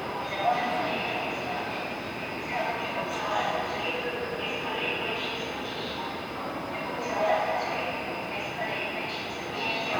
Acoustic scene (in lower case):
subway station